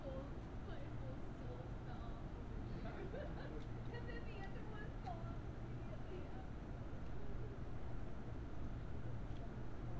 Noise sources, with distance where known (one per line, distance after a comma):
person or small group talking, near